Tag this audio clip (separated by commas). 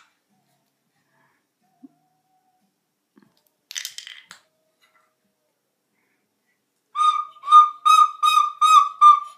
Whistle